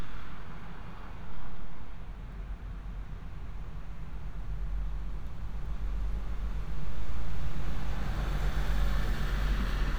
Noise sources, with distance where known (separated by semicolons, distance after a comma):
engine of unclear size